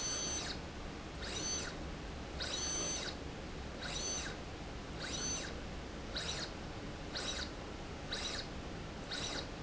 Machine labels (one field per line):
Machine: slide rail